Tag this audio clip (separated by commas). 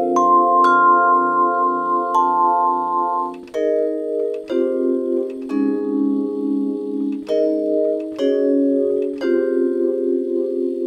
Music